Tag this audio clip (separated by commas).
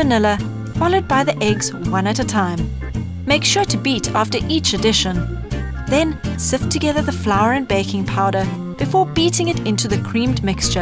Music, Speech